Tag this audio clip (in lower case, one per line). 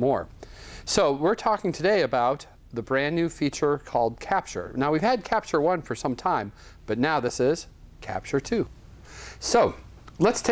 speech